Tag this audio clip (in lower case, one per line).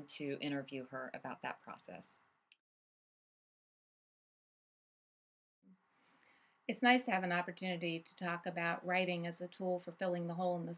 speech